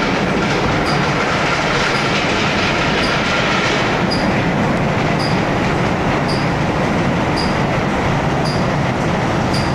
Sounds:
Car passing by

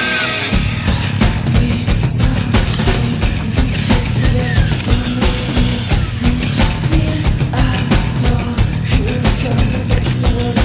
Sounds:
Music

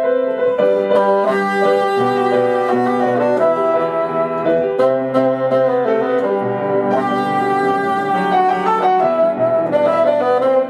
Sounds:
playing bassoon

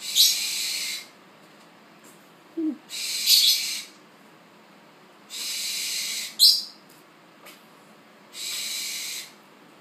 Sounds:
Animal, Domestic animals

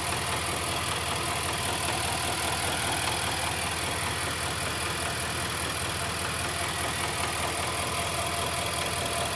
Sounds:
car engine knocking

